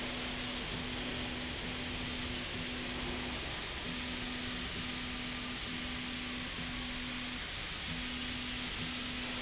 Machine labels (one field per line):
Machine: slide rail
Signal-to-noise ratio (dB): -6 dB